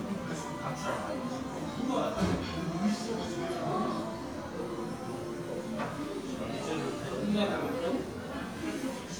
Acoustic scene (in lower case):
crowded indoor space